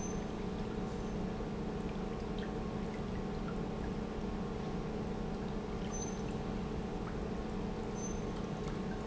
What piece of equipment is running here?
pump